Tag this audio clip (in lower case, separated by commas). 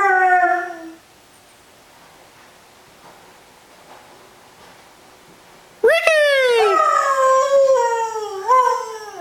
speech, dog, bark, pets, animal